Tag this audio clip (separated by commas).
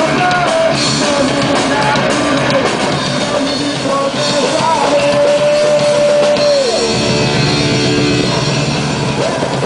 Musical instrument, Bass guitar, Progressive rock, Guitar, Electric guitar, Punk rock, Rock and roll, Plucked string instrument, Music